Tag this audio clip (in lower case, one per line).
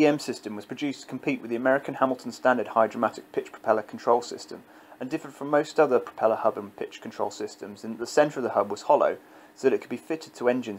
speech